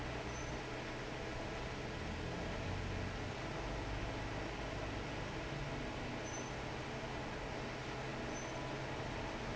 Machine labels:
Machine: fan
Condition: normal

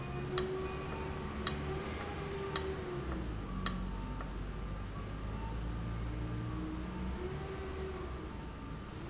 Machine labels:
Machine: valve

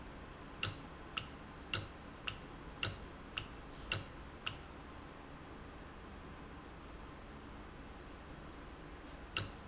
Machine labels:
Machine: valve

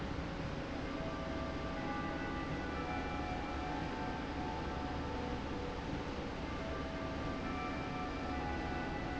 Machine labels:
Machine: slide rail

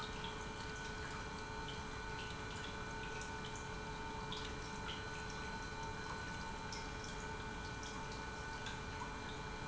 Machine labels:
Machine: pump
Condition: normal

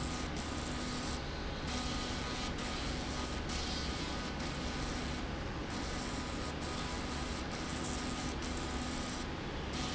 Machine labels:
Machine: slide rail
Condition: abnormal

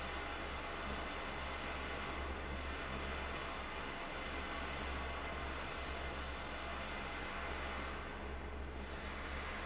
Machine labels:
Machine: fan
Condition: abnormal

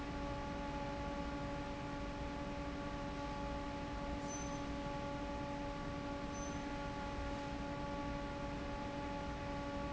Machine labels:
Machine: fan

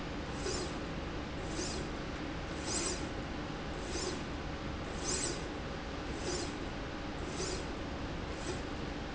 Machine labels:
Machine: slide rail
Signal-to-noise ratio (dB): -6 dB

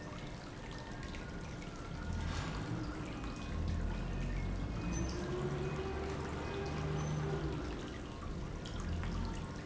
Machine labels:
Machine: pump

